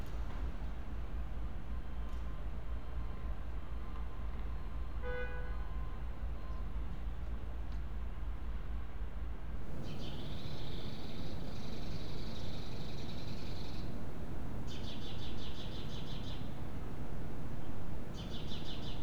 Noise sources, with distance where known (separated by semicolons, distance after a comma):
background noise